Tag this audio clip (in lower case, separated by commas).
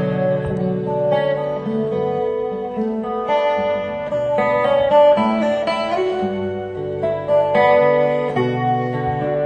electric guitar, music, strum, acoustic guitar, musical instrument, guitar, plucked string instrument